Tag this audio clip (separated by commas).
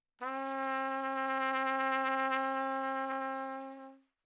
Brass instrument, Trumpet, Musical instrument, Music